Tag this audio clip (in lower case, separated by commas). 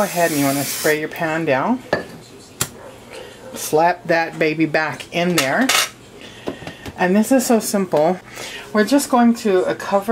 cutlery, eating with cutlery, dishes, pots and pans